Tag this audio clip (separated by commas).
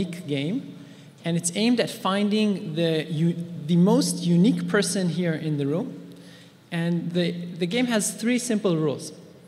Speech